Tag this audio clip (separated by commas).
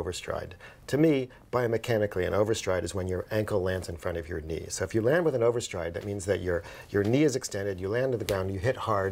Speech, inside a small room